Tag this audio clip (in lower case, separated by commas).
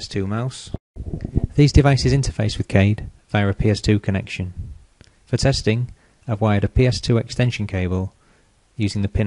speech